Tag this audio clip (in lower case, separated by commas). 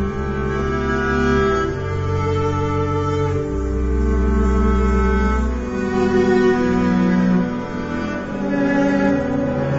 music, plucked string instrument, cello, playing cello, guitar, musical instrument